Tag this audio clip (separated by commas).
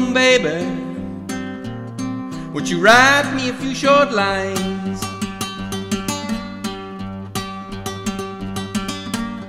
Plucked string instrument, Guitar, Musical instrument, Music